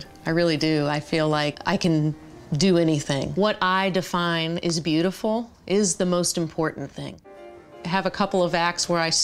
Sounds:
music, speech

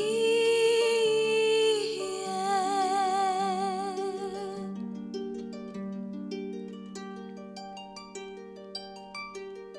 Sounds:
playing harp, pizzicato, harp

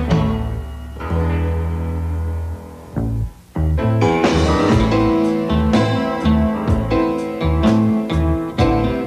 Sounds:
music, slide guitar, blues

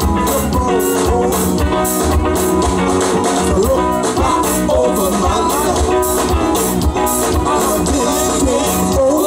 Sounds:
music of latin america, music, singing

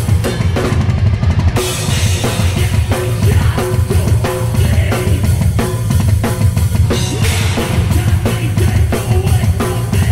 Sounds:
musical instrument, bass drum, music, drum kit, drum

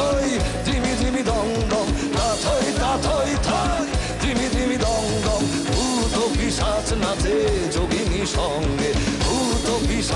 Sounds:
male singing, music

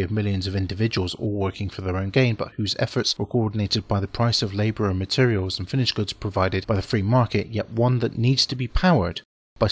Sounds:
speech

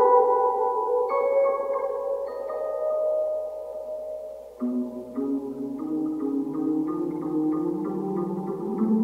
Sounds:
reverberation, music

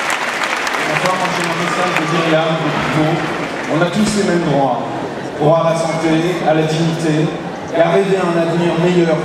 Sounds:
speech

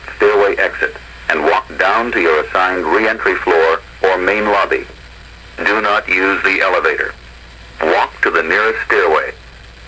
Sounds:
speech

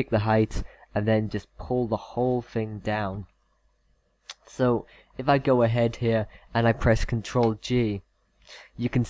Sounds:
speech, monologue

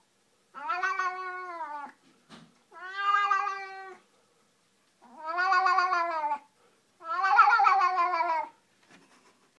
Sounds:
animal, cat, pets

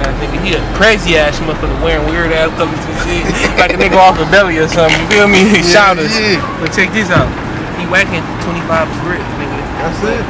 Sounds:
speech

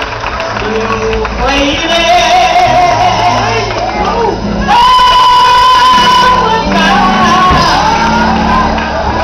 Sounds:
music, male singing, speech

